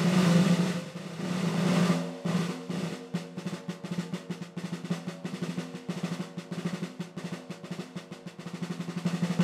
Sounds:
playing snare drum
snare drum
music
cymbal

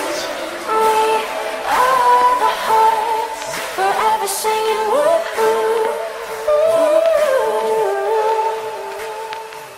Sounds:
singing

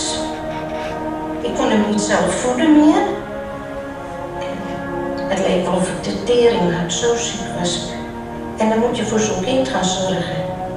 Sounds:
speech

